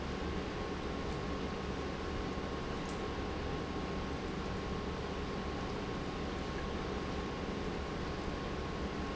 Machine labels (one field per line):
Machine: pump